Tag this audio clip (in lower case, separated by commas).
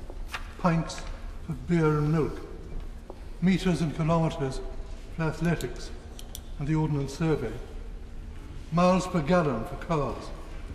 monologue, speech, male speech